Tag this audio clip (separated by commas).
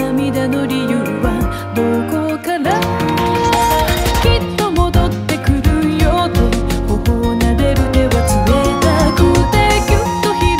Music